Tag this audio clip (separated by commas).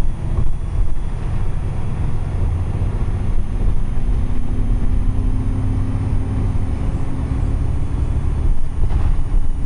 Bus, Vehicle